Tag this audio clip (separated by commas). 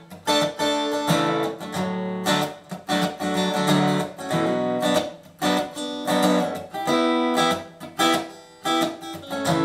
Strum, Musical instrument, Guitar, Music, Plucked string instrument, Acoustic guitar